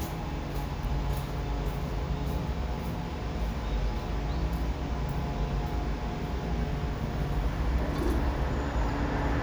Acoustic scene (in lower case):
elevator